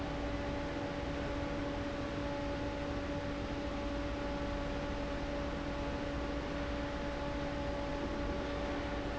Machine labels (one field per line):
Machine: fan